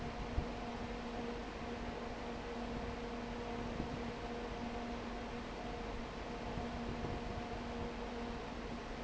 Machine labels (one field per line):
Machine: fan